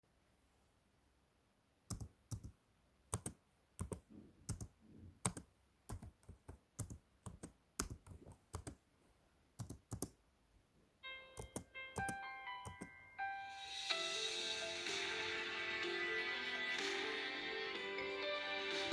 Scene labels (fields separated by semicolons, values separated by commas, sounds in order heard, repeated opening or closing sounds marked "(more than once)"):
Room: office; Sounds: keyboard typing, phone ringing